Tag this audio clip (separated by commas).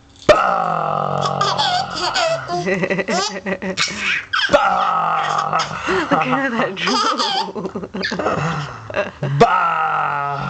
Speech, Laughter